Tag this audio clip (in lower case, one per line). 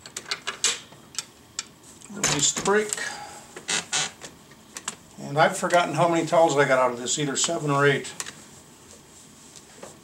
speech